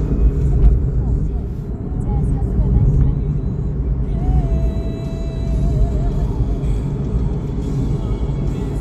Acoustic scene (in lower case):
car